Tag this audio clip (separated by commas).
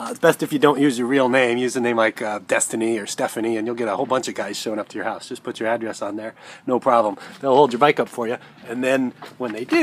Speech